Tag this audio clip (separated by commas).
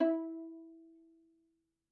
Musical instrument, Bowed string instrument, Music